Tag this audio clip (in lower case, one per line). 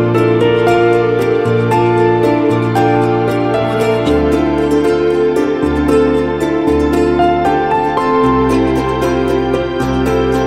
music